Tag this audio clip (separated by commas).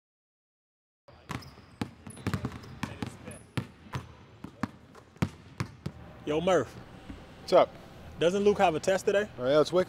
Basketball bounce, Speech